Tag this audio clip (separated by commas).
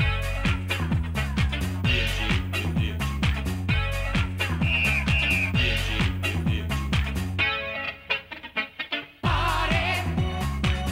Theme music, Music